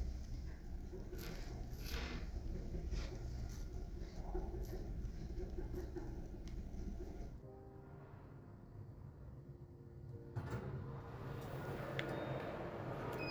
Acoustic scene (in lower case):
elevator